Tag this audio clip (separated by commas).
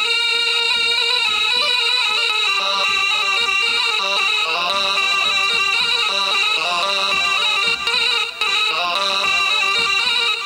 Music